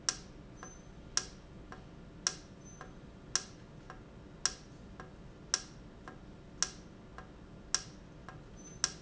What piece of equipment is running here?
valve